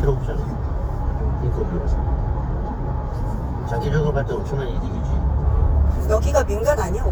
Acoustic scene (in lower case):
car